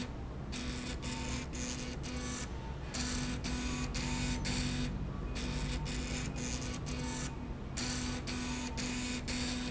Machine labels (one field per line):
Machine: slide rail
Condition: abnormal